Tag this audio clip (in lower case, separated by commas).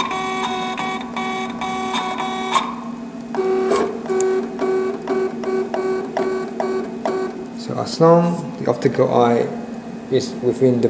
inside a small room, speech